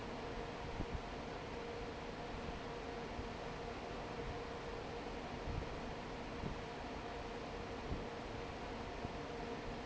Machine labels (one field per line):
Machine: fan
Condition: normal